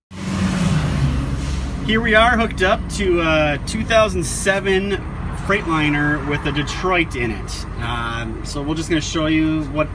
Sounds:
vehicle, speech

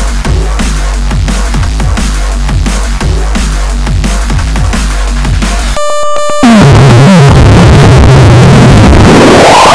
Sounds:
music

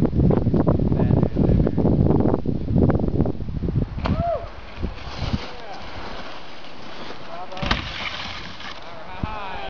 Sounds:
speech

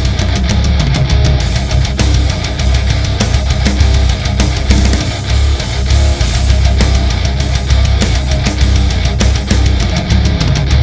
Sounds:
funk, music, guitar, bass guitar, musical instrument, plucked string instrument, acoustic guitar, electric guitar

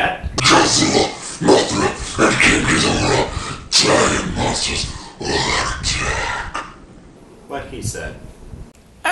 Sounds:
inside a small room, speech

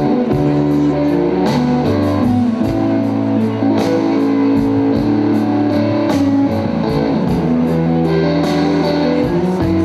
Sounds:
music

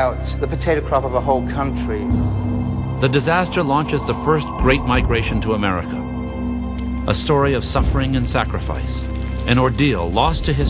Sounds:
outside, rural or natural, music, inside a small room, speech

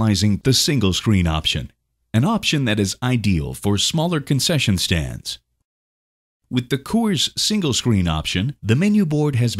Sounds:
speech

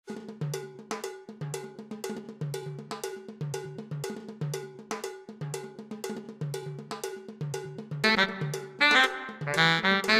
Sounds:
music

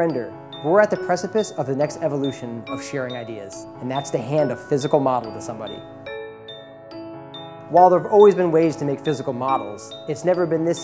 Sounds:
speech, music

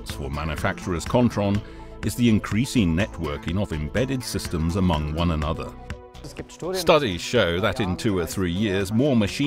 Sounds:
speech, music

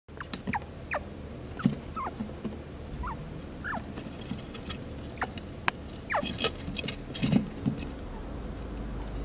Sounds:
chinchilla barking

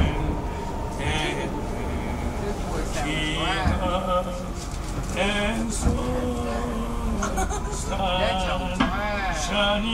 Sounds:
male singing, speech

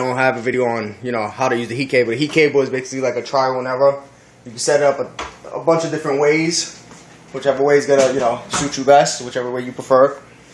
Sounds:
inside a small room, speech

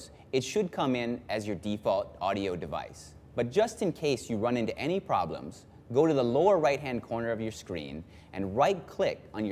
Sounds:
speech

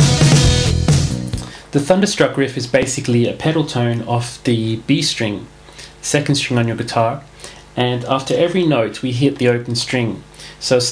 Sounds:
speech, electric guitar, music, guitar, bass guitar, plucked string instrument, acoustic guitar, musical instrument, strum

